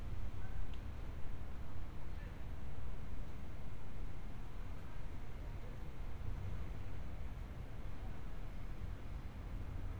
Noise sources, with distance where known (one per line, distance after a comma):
person or small group talking, far